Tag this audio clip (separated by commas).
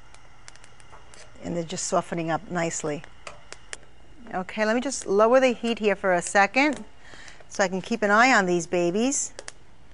Speech, inside a small room